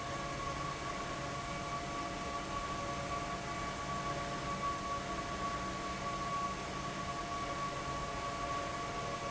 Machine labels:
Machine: fan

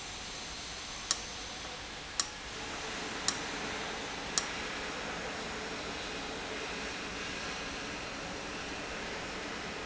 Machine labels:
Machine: valve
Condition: abnormal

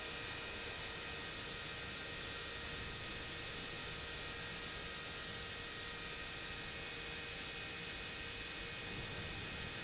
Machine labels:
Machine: pump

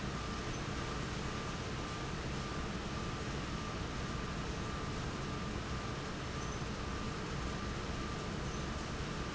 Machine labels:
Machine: fan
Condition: abnormal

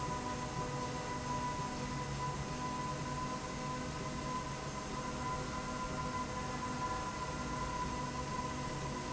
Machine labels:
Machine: slide rail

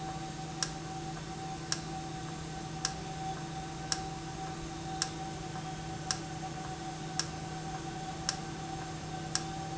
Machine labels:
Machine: valve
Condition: normal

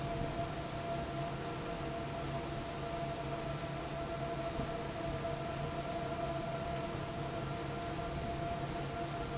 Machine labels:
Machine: fan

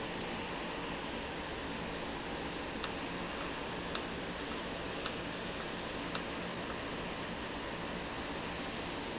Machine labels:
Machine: valve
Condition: normal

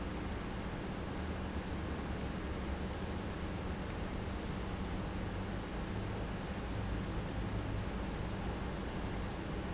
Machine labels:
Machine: pump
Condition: normal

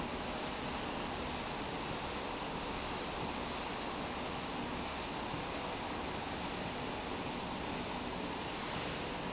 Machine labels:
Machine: slide rail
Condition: normal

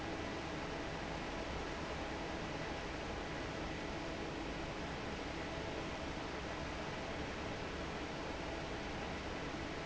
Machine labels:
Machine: fan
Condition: normal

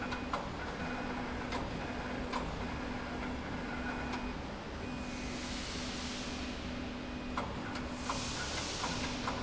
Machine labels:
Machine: slide rail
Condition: normal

